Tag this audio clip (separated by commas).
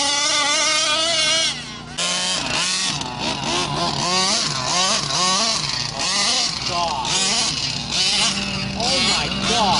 Speech, Accelerating